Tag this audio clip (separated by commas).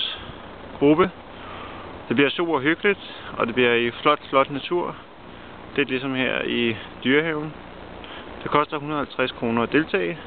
outside, rural or natural, Male speech